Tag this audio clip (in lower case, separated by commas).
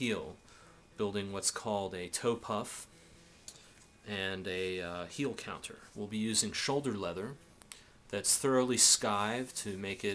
speech